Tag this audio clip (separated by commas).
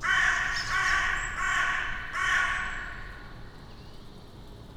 Animal, Wild animals, Bird, Crow